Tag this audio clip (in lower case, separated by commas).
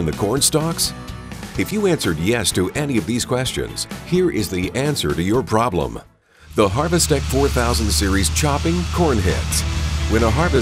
music, speech